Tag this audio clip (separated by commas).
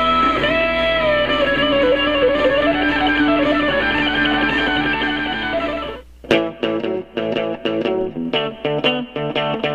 Guitar, playing electric guitar, Musical instrument, Music, Electric guitar